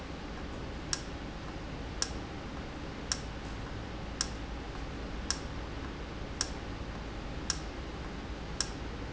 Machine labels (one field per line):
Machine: valve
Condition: normal